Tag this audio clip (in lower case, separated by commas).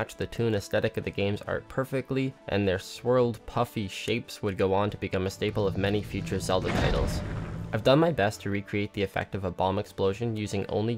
speech